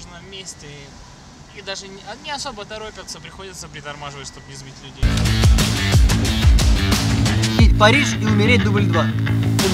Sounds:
Speech, Music

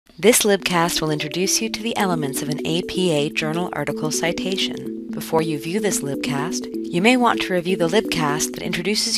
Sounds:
monologue

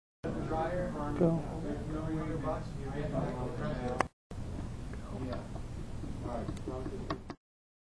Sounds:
Speech

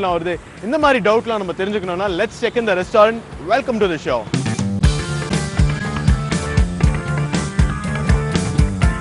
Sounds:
Music, Speech

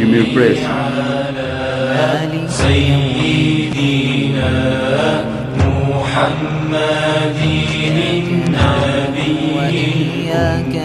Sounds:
Music, Speech

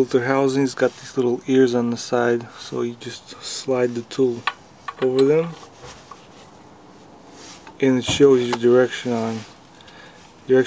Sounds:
Speech

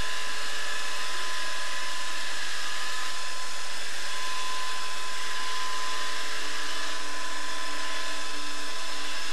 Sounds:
Vacuum cleaner

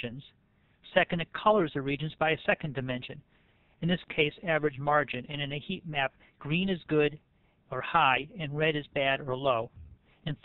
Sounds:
Speech

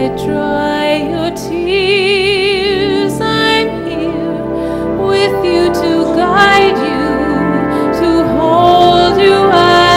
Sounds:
Music, Opera

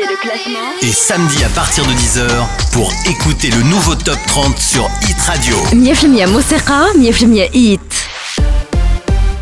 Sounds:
Music, Speech

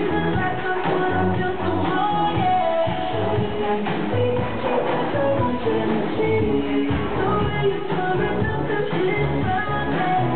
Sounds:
Music

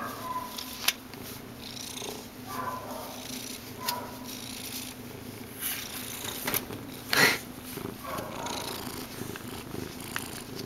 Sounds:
pets

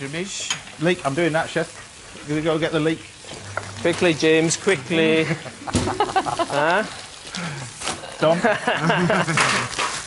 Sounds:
Speech, inside a large room or hall

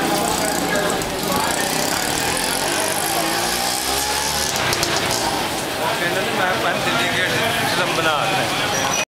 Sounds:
Speech

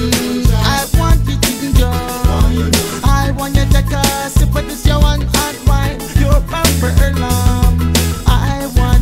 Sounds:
Music

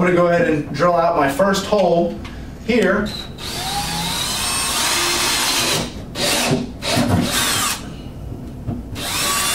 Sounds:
Drill, inside a small room, Speech

